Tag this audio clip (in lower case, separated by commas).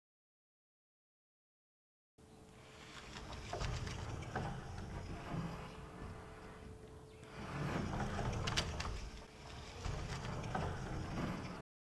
door, home sounds, sliding door